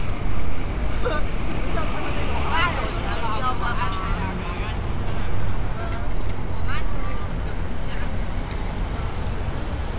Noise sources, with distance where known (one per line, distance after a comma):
person or small group talking, near